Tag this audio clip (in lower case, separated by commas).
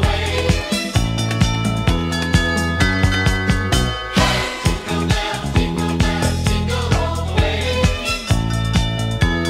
music, christmas music, christian music